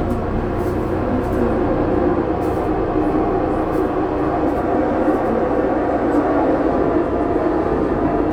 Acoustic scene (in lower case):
subway train